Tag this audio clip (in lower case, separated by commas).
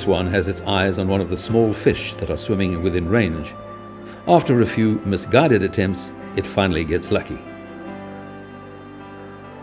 speech, music